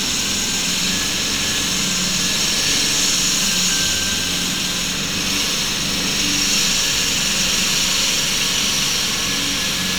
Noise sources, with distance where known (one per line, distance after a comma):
small or medium rotating saw